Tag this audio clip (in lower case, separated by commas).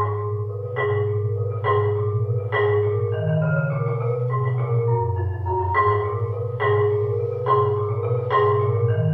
marimba, playing marimba, music